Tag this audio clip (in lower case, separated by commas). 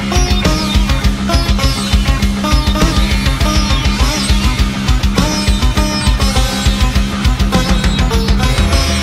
playing sitar